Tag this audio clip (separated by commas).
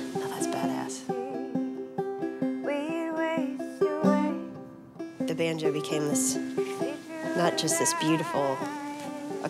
Music, Speech